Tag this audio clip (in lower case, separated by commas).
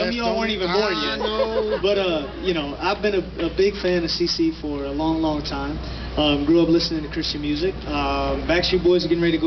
speech